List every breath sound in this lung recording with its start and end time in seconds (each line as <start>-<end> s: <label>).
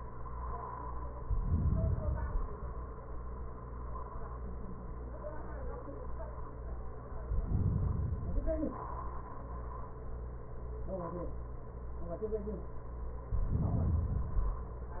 1.14-1.98 s: inhalation
1.97-2.82 s: exhalation
7.28-8.25 s: inhalation
8.24-9.40 s: exhalation
13.36-14.32 s: inhalation
14.31-15.00 s: exhalation